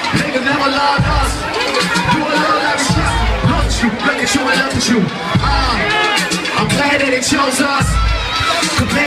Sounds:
speech, music

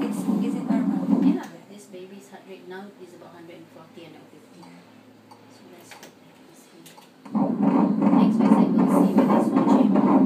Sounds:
speech

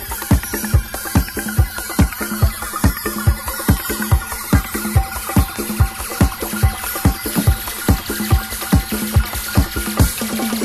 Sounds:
music, disco

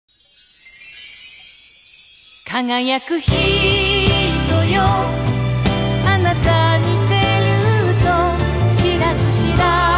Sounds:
music

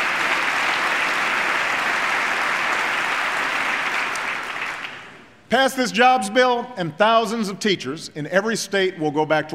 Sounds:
man speaking, speech

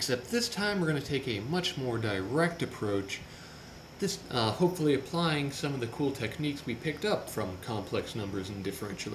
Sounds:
speech

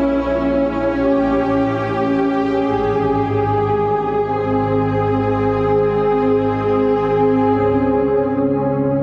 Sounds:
music

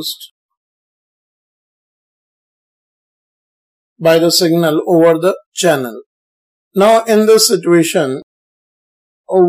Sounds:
speech

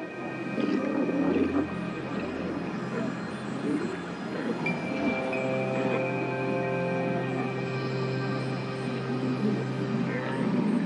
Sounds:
music, speech

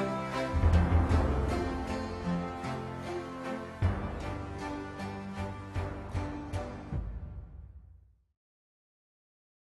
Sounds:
music, harpsichord

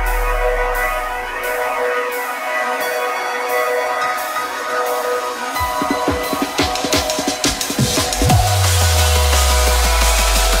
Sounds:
music, drum and bass

